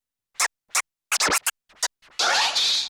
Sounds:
music
scratching (performance technique)
musical instrument

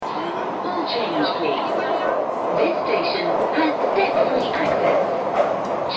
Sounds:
underground
rail transport
vehicle

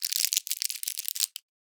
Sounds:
crumpling

